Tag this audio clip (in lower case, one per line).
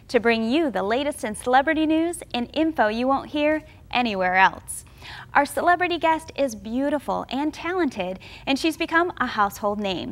speech